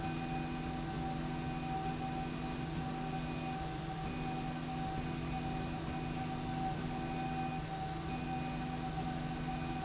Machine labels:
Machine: slide rail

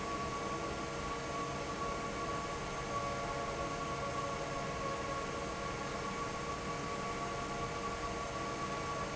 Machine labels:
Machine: fan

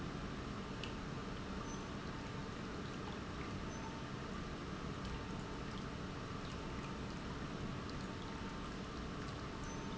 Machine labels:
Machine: pump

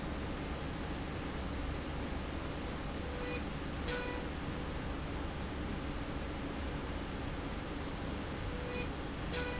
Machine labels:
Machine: slide rail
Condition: normal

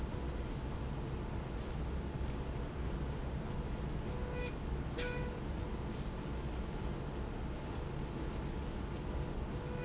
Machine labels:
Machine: slide rail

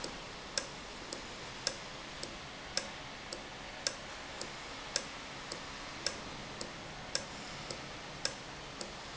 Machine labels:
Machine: valve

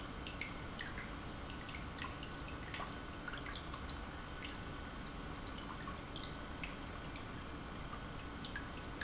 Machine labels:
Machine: pump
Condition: normal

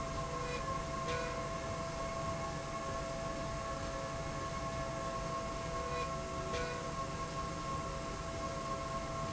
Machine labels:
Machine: slide rail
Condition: normal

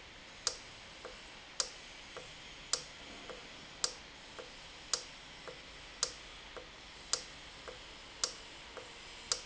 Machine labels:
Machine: valve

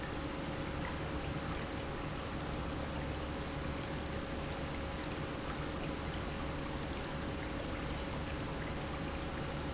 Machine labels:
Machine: pump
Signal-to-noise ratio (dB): -6 dB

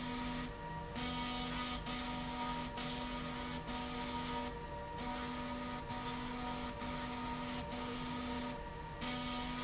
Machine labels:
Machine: slide rail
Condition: abnormal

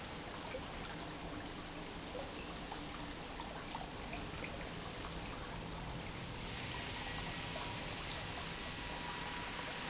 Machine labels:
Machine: pump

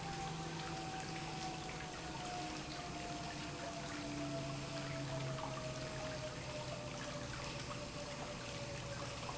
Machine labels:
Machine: pump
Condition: normal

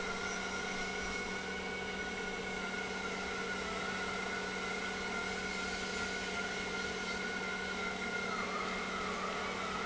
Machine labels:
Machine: pump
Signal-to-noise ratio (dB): -6 dB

